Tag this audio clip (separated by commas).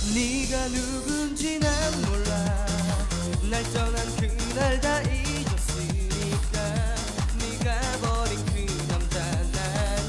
Music